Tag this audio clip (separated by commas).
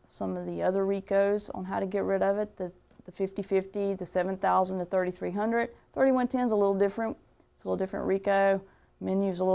Speech